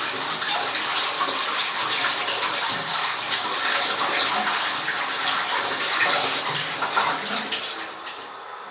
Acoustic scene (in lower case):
restroom